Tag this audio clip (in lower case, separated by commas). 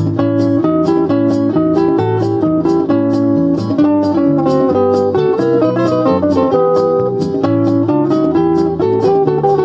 guitar, inside a small room, musical instrument, music, plucked string instrument